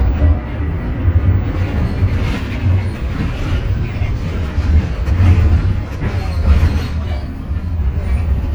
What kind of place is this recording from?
bus